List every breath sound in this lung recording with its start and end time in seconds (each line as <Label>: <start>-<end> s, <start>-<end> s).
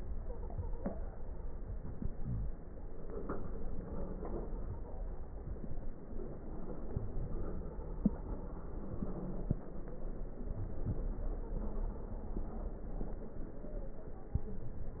Inhalation: 1.58-2.61 s
Wheeze: 2.16-2.54 s
Stridor: 0.18-1.04 s, 4.53-5.20 s, 7.39-8.29 s, 11.44-12.08 s